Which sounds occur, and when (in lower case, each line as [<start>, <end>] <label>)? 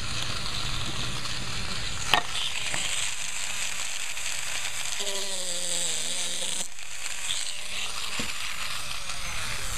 [0.00, 9.75] table saw
[2.04, 2.21] generic impact sounds
[2.66, 2.83] generic impact sounds
[8.11, 8.28] tap